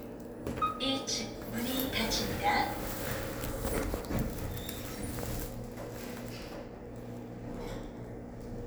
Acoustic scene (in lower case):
elevator